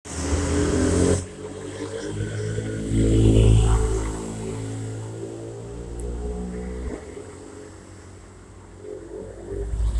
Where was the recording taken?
on a street